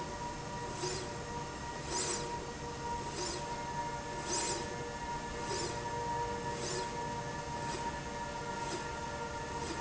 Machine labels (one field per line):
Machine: slide rail